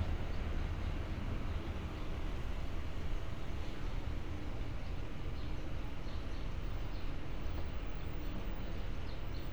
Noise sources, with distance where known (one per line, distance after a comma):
dog barking or whining